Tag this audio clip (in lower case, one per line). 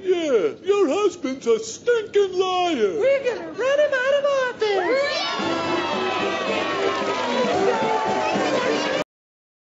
speech
music